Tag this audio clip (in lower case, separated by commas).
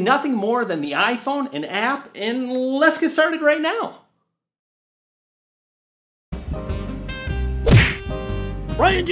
speech, music